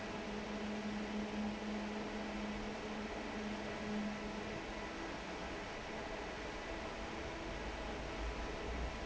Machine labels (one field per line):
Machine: fan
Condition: normal